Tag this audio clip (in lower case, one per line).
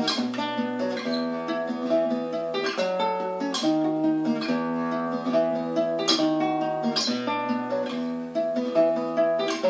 acoustic guitar
guitar
music
strum
musical instrument
plucked string instrument